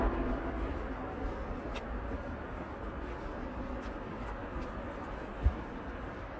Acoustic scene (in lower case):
residential area